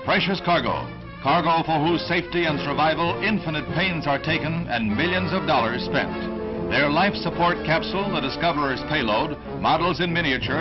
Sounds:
speech, music

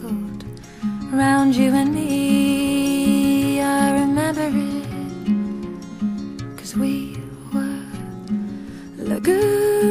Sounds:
music, tender music

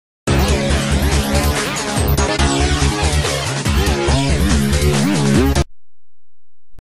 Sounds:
music

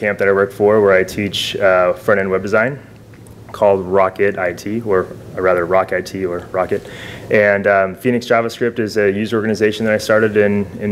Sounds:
speech

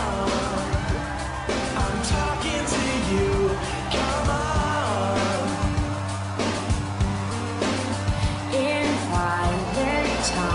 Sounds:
music

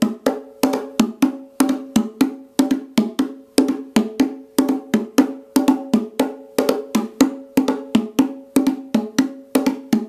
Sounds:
playing bongo

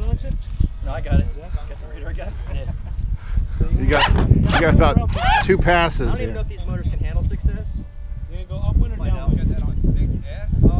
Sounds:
speech

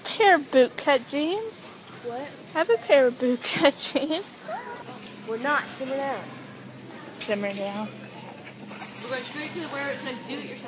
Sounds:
speech

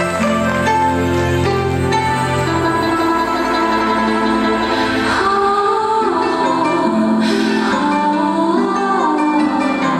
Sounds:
percussion, music

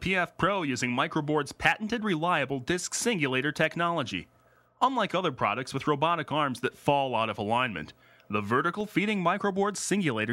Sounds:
speech

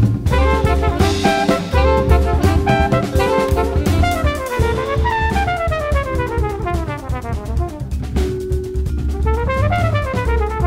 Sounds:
music, trombone

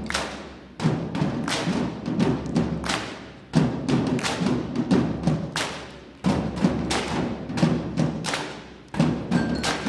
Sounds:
percussion, musical instrument, music, drum

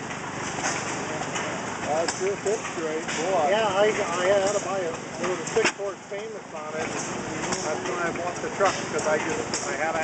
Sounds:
speech, engine

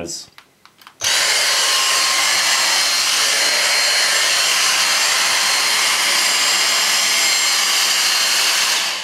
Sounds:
vacuum cleaner cleaning floors

